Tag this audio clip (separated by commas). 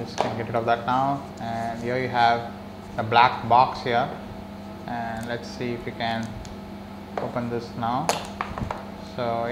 Speech